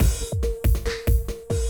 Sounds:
music, percussion, musical instrument, drum kit

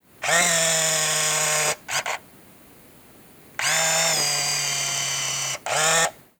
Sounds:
camera, mechanisms

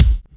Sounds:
musical instrument, bass drum, percussion, music, drum

